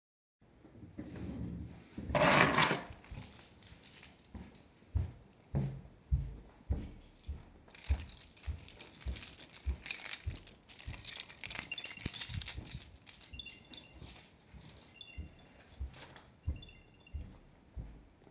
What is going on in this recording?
I stood up from my desk chair, in the meantime grabbed my keychain and started walking through the apartment. You can hear the keychain while walking. After a while, my air tag started to make sounds.